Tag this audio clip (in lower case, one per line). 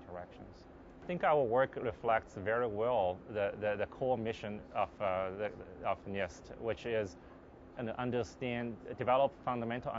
speech